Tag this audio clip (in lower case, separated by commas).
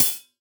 percussion, music, musical instrument, cymbal, hi-hat